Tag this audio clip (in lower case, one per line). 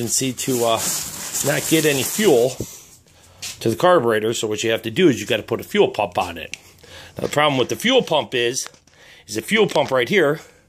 speech